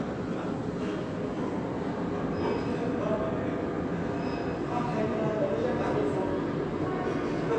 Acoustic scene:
subway station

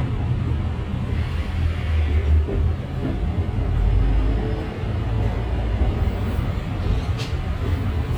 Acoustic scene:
bus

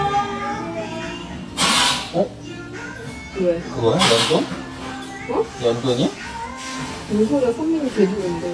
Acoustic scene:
restaurant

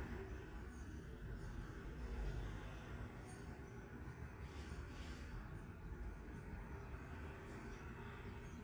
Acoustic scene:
residential area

